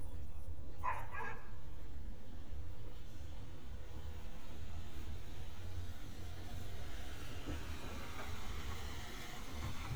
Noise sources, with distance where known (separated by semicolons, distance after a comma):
small-sounding engine; dog barking or whining, far